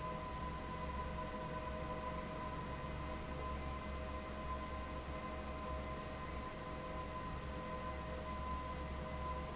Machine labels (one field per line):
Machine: fan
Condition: abnormal